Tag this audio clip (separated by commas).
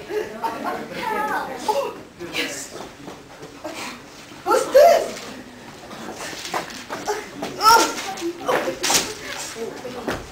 Speech